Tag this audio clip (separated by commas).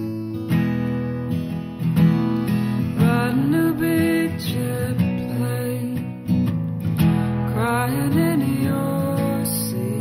Music